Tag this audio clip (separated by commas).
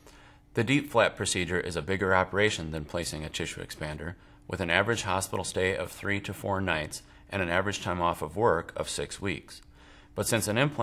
Speech